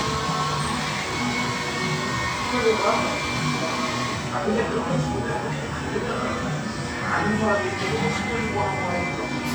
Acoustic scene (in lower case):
cafe